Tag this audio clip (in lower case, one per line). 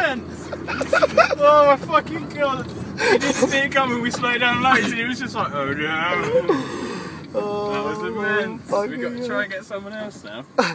speech